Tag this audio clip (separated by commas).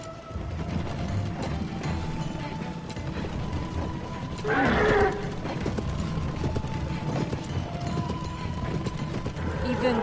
Speech, people running, Run